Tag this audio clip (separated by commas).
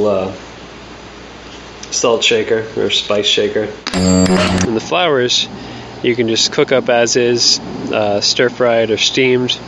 Music, Speech